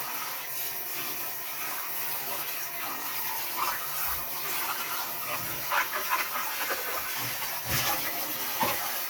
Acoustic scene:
kitchen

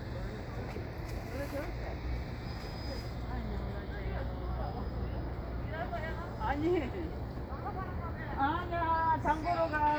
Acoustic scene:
street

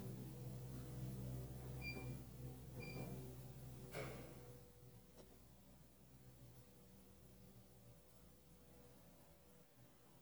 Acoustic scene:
elevator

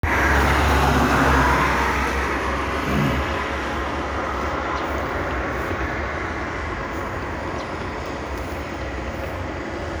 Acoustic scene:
street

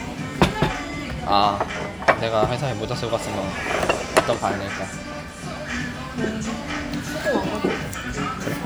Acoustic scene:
restaurant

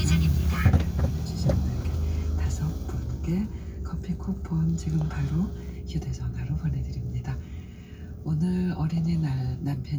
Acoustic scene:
car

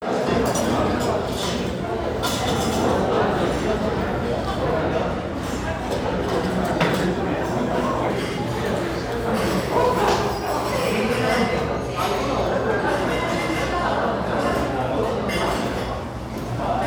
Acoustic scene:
restaurant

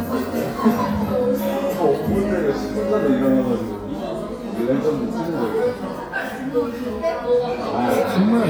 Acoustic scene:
crowded indoor space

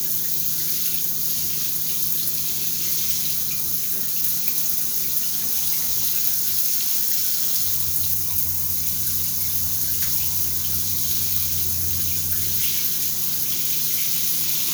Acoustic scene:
restroom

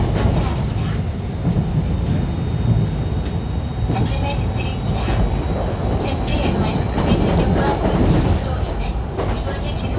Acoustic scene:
subway train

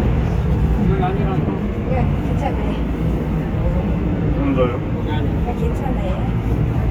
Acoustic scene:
subway train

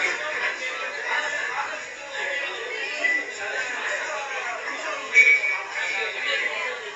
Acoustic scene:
crowded indoor space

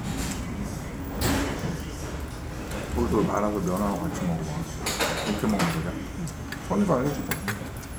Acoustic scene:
restaurant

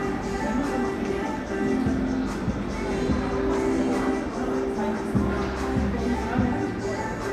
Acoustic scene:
cafe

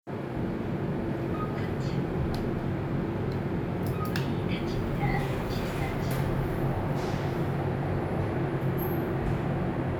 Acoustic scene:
elevator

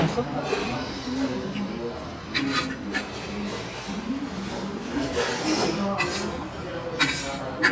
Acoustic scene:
crowded indoor space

